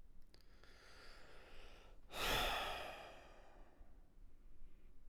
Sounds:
Breathing, Sigh, Respiratory sounds, Human voice

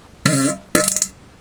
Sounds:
Fart

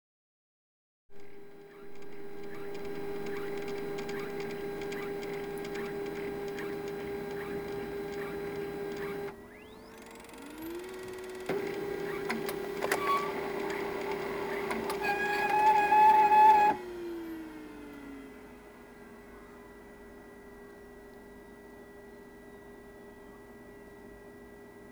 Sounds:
Printer, Mechanisms

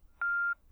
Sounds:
Telephone, Alarm

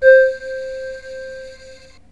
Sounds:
Keyboard (musical), Musical instrument, Music

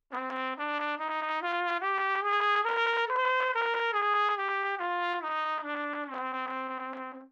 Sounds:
Brass instrument, Musical instrument, Trumpet, Music

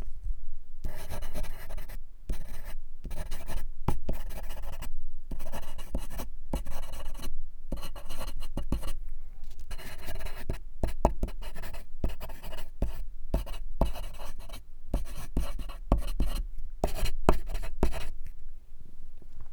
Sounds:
Writing, Domestic sounds

